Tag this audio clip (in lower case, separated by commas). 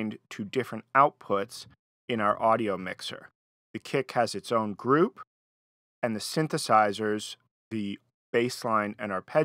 speech